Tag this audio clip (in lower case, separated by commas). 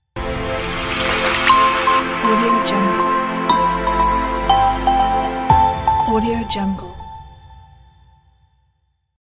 music, speech